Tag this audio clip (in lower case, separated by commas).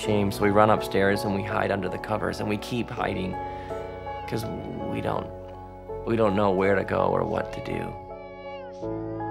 music, speech